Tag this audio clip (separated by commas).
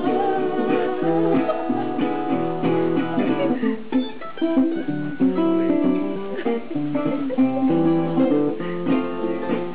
Acoustic guitar, Guitar, Ukulele, Strum, Music